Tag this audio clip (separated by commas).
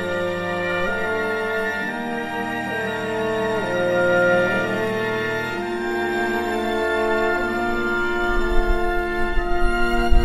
playing oboe